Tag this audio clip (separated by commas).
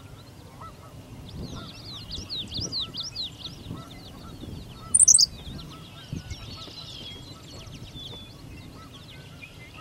tweeting, tweet, bird song, Bird